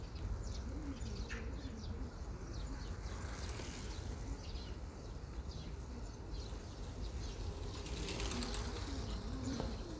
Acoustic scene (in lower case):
park